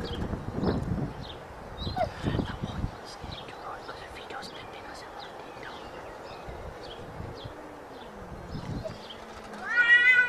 Birds are chirping a person whispers and a cat meows sharply